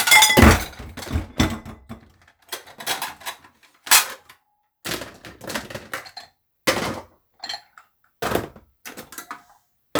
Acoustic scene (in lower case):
kitchen